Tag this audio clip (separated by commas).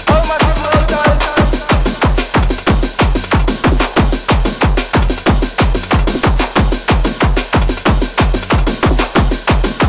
Music